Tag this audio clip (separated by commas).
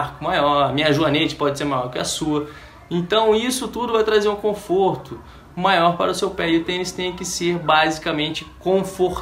Speech, inside a small room